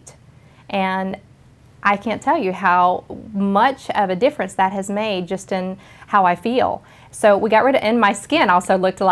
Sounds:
speech
inside a large room or hall
woman speaking

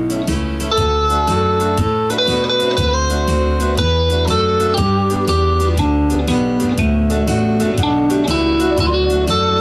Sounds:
musical instrument
strum
guitar
plucked string instrument
acoustic guitar
music

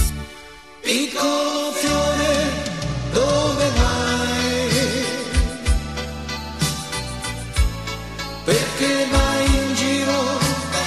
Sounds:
music

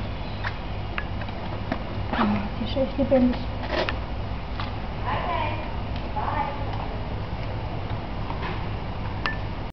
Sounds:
speech

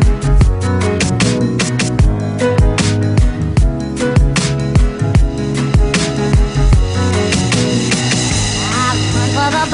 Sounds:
jingle (music)

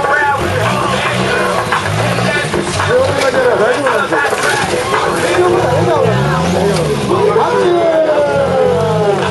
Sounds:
music
vehicle
car
speech
motor vehicle (road)

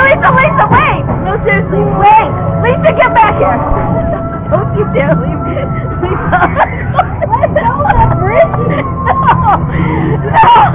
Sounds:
speech
music

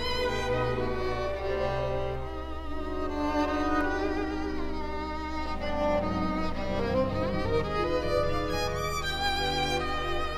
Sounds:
musical instrument
music
fiddle

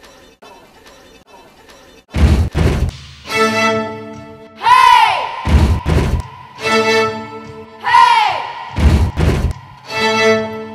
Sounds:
music

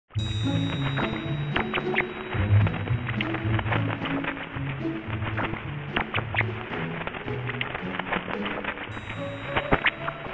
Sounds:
music

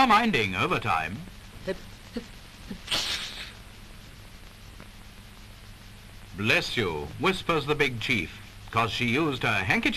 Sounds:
speech
sneeze

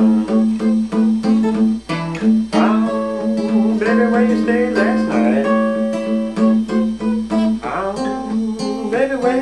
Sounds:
music
musical instrument
blues

